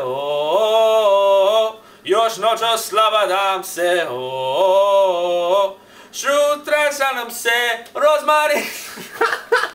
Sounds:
Male singing

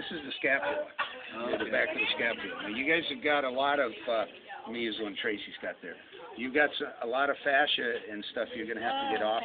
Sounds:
Speech

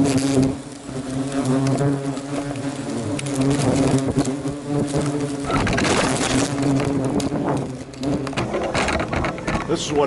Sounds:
wasp

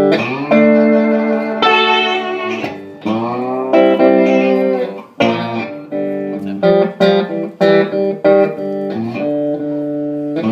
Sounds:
Musical instrument, Music, Strum, Plucked string instrument, Guitar

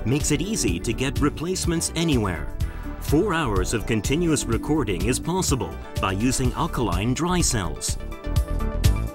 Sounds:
Speech, Music

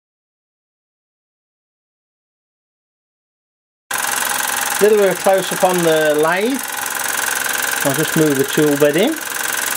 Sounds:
Engine, Speech

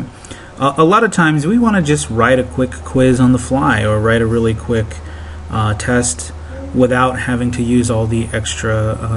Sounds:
Speech

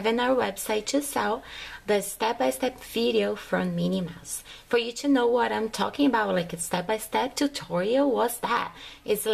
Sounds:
Speech

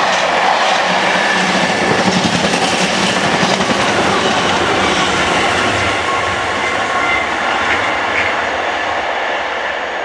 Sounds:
Railroad car, Vehicle, Train, Rail transport

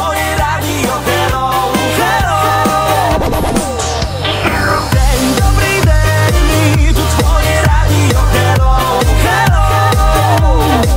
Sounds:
Music

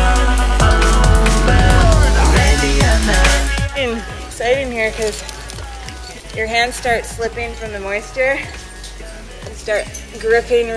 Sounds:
Drum and bass

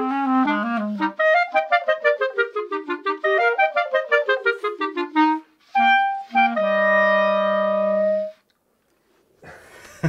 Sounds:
Clarinet

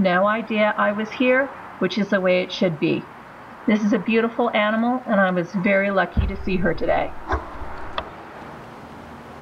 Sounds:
Speech

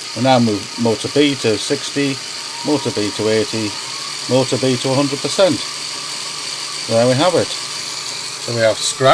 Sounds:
Speech

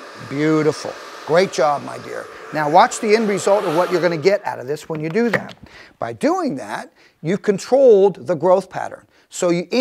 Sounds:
hair dryer drying

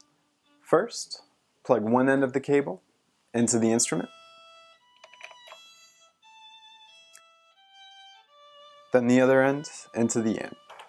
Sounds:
Music, Speech, Musical instrument, fiddle

